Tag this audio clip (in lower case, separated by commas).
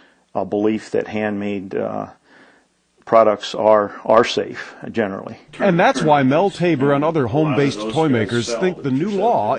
speech